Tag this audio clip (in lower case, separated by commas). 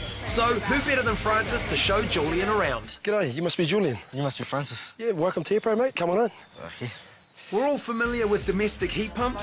speech, music